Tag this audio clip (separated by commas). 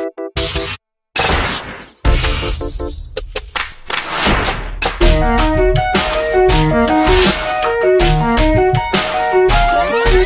Background music, Music